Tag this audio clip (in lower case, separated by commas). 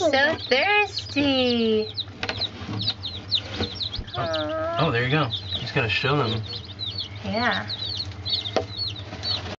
speech